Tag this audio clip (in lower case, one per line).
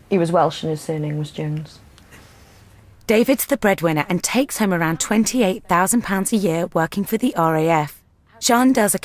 speech